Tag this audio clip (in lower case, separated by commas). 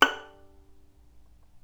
music, bowed string instrument, musical instrument